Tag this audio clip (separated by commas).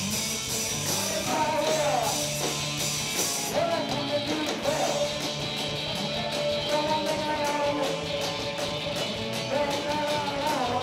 Music